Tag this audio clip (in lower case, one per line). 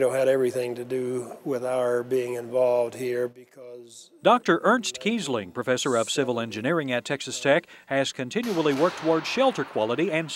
speech